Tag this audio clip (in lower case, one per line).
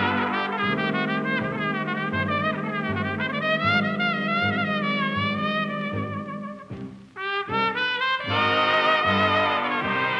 brass instrument
trombone